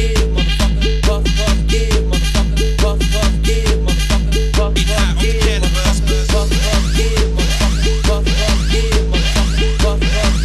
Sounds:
House music, Music, Electronic music

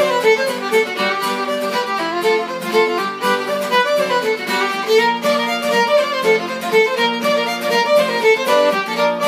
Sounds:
fiddle, Bowed string instrument

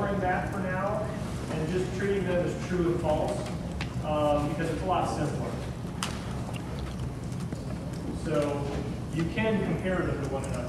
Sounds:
Speech

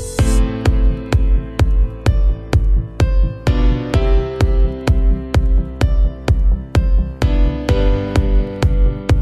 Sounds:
Music, Soundtrack music

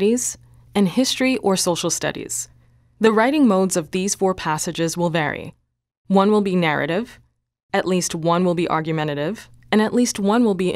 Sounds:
Speech

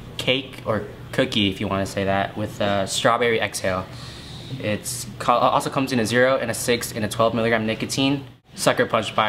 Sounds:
Speech

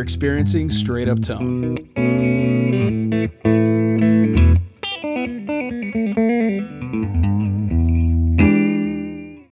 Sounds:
Guitar, Musical instrument, Speech, Music

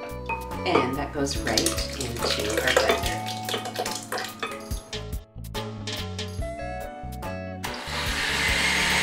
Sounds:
inside a small room, Music, Speech

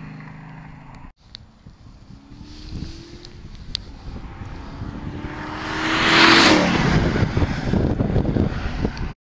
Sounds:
White noise

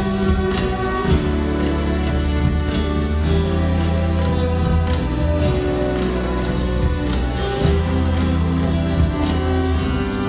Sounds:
Music, Musical instrument, Orchestra

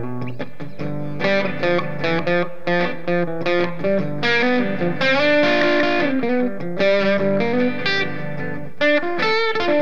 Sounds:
Bass guitar, Music

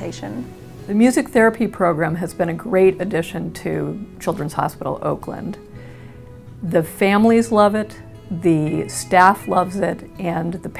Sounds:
Music, Speech

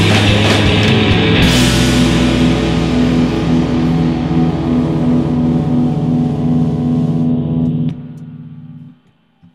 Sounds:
Music

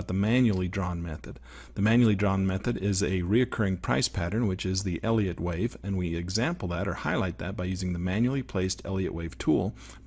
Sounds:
Speech

